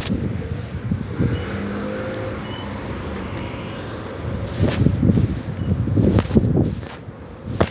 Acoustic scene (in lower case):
residential area